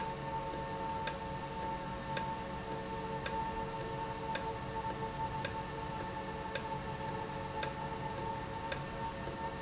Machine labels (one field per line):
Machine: valve